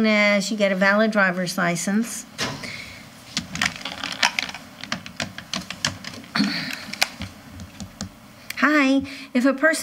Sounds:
inside a large room or hall
speech

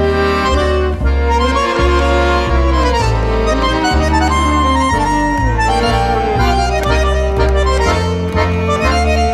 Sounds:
violin
music
bowed string instrument
accordion
double bass
cello
musical instrument

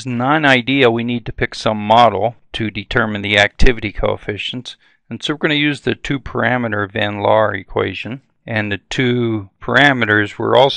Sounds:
speech

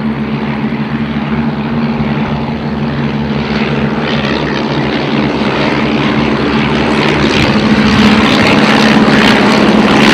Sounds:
aircraft

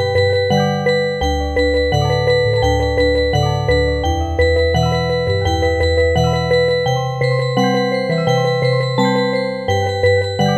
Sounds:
music

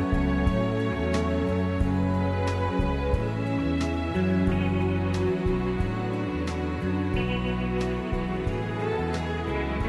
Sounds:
music

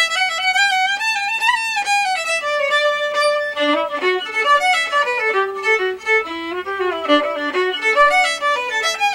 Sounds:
musical instrument
violin
music

